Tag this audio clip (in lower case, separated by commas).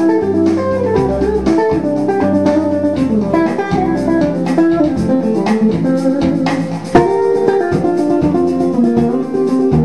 guitar, electric guitar, plucked string instrument, musical instrument, music